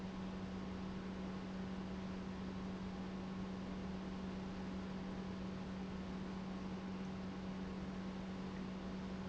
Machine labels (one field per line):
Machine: pump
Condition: normal